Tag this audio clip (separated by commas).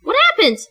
woman speaking, Speech, Human voice